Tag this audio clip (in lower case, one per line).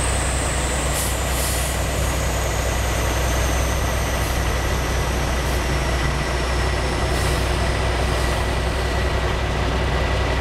air brake
truck
vehicle